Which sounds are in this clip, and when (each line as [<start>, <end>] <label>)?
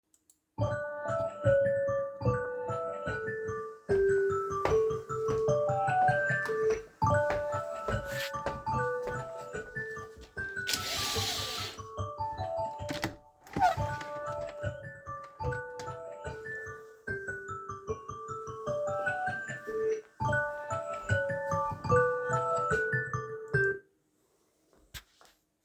[0.52, 23.91] phone ringing
[4.60, 10.28] footsteps
[12.81, 14.60] window